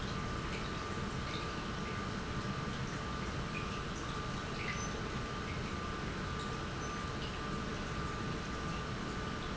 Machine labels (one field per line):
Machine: pump